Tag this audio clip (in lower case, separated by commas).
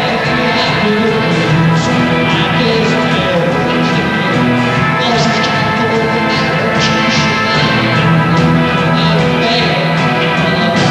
music